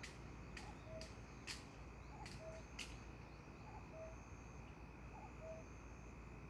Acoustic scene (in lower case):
park